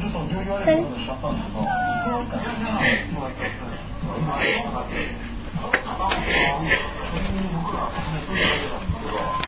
People speak, a cat meows